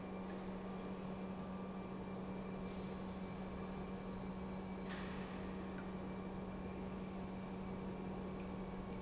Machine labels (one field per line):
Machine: pump